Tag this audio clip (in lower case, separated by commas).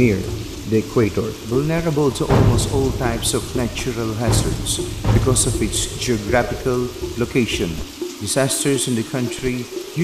water